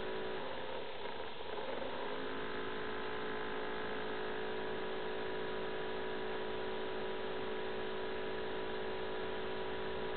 A motor-like vibration occurs, pauses for a second, and starts again